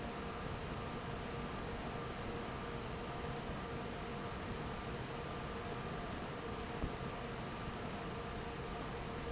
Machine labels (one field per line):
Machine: fan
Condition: normal